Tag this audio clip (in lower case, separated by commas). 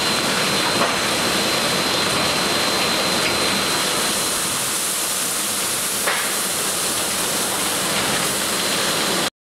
vehicle